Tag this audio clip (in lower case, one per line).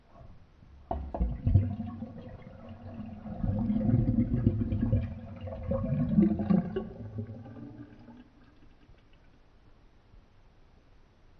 home sounds
sink (filling or washing)